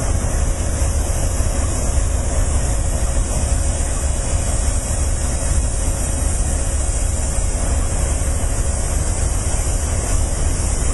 Loud hissing like machinery running